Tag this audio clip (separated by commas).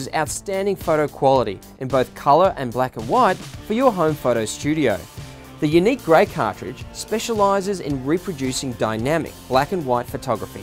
Speech, Music